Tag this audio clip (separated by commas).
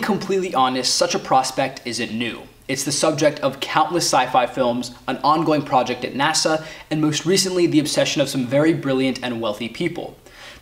Speech